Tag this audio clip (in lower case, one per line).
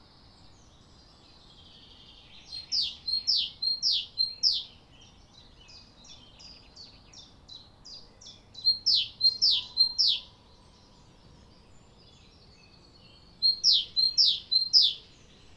bird vocalization
wild animals
animal
bird